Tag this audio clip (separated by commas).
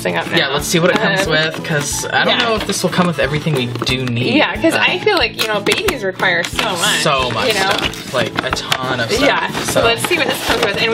Music, Speech